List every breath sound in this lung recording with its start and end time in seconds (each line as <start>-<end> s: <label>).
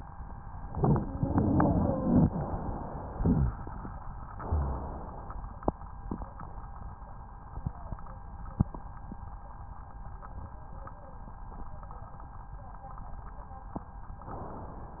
0.64-2.21 s: inhalation
0.64-2.21 s: wheeze
2.24-3.15 s: exhalation
3.18-4.30 s: inhalation
3.18-4.30 s: crackles
4.35-5.46 s: exhalation